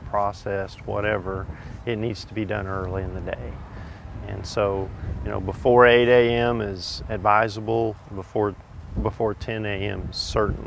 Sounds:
Speech

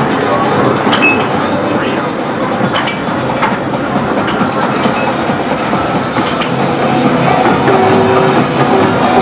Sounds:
Music, Background music, Video game music

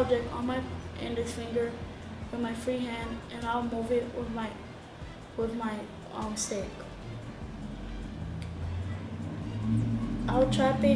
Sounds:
Speech

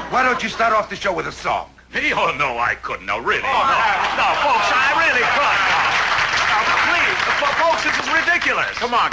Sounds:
Speech

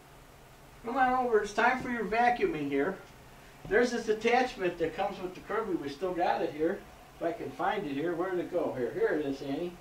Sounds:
Speech

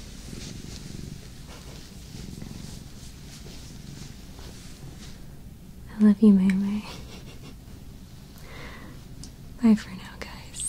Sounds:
cat purring

